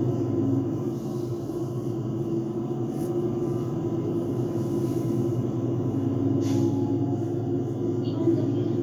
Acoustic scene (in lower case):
bus